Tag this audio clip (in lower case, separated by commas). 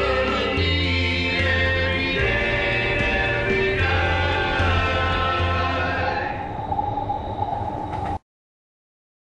vehicle, music, subway